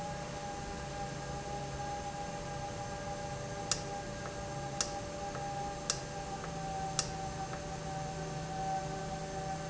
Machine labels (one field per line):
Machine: valve